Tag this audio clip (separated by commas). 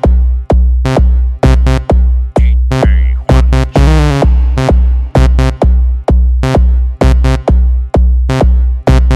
Music